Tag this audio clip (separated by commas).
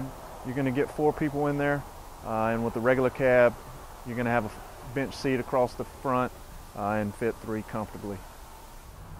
Speech